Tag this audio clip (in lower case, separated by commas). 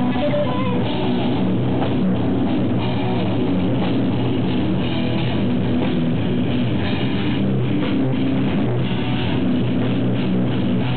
music, rock music, heavy metal